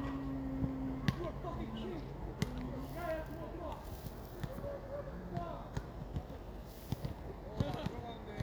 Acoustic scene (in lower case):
park